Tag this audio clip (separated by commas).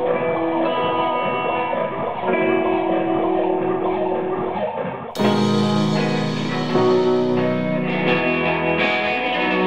Music